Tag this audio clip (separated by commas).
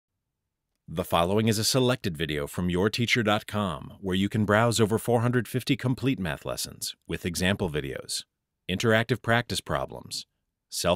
Speech